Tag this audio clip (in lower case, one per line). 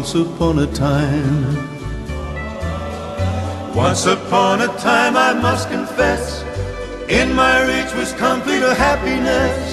music
choir
male singing